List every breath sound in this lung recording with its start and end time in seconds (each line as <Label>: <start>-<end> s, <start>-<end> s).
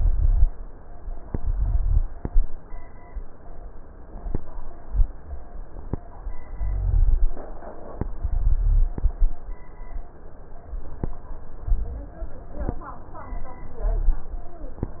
Rhonchi: 0.00-0.44 s, 1.37-2.07 s, 6.53-7.23 s, 8.18-8.88 s